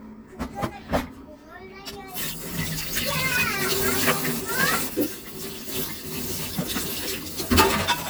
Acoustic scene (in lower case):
kitchen